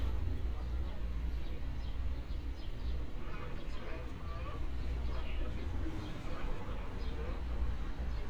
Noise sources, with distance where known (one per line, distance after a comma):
unidentified human voice